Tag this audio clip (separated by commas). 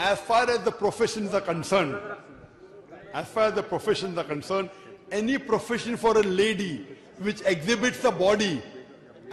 Speech